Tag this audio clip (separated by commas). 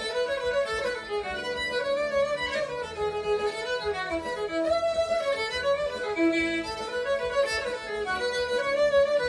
String section